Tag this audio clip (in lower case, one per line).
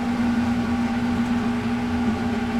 engine